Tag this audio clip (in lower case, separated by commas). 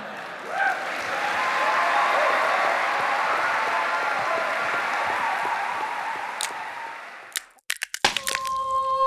music